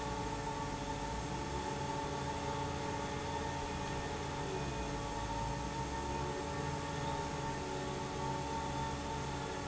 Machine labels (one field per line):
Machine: fan